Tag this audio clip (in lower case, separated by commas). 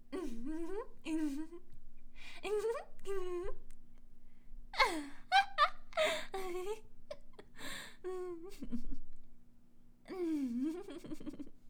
human voice, giggle, laughter, chuckle